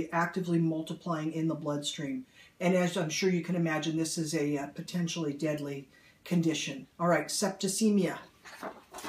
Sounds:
speech

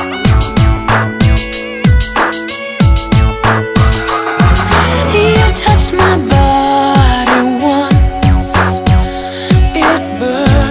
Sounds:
music

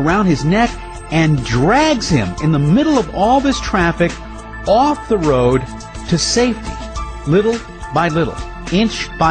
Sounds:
speech
music

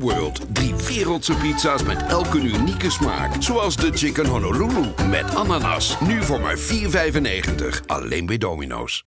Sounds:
music
speech

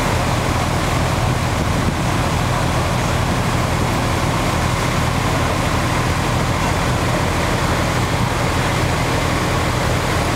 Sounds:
roadway noise
vehicle

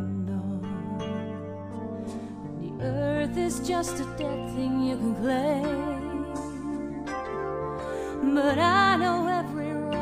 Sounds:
music

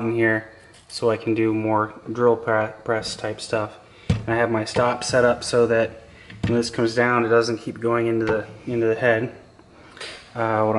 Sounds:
speech

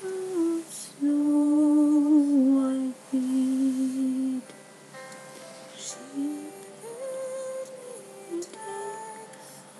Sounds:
music

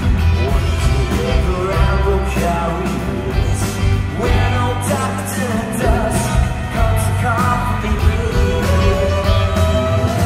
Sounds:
music
singing

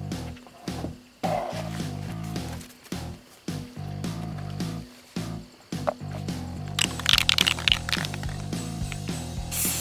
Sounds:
music

